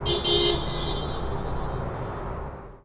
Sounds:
alarm, vehicle, motor vehicle (road), vehicle horn, car, traffic noise

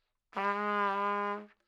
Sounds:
musical instrument, music, brass instrument, trumpet

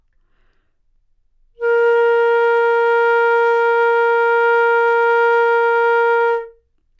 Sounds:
wind instrument, music, musical instrument

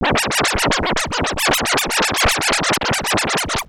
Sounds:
scratching (performance technique), musical instrument, music

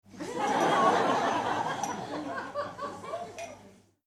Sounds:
human group actions, human voice, laughter, crowd

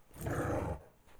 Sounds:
dog, animal, domestic animals

